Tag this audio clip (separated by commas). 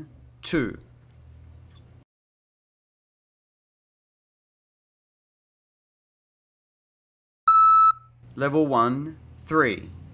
Speech